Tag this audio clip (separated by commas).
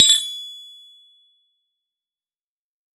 Tools